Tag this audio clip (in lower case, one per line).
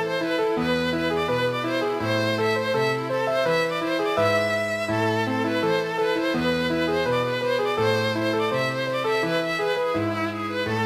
fiddle
musical instrument
music